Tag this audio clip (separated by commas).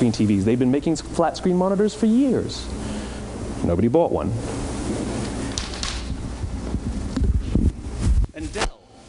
Speech